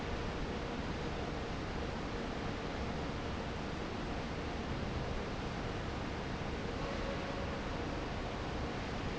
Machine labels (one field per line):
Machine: fan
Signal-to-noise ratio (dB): -6 dB